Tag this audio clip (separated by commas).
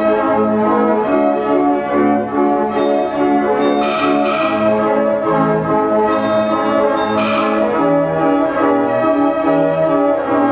Music